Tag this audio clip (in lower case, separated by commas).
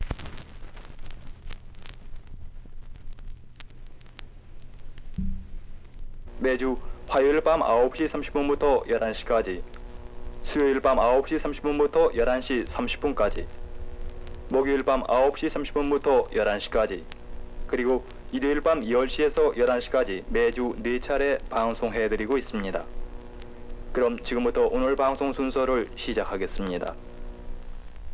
crackle